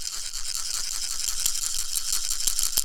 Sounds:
music
musical instrument
rattle (instrument)
percussion

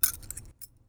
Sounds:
keys jangling
domestic sounds

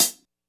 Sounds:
music
cymbal
hi-hat
percussion
musical instrument

